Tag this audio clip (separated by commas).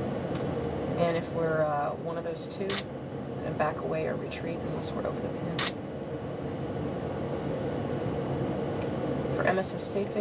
Speech